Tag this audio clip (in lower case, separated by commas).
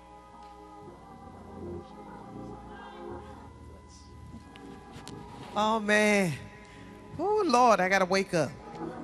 music, speech